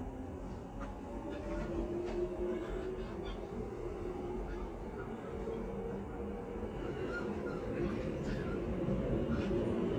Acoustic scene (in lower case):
subway train